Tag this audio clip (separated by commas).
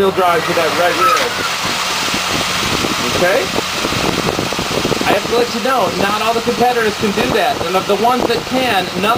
Car, Speech, Vehicle